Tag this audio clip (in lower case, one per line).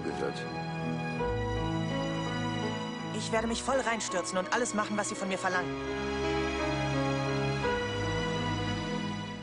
music
speech